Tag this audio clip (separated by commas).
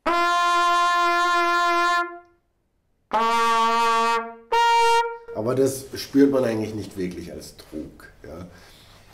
playing cornet